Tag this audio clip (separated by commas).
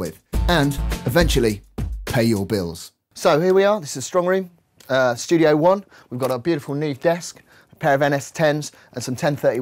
Music, Speech